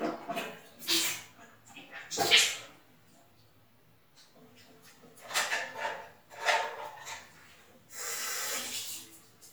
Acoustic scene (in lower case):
restroom